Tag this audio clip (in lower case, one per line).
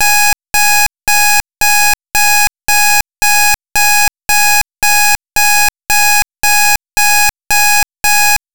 alarm